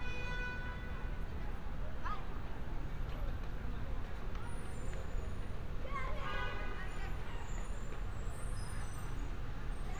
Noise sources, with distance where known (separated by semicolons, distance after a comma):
car horn, far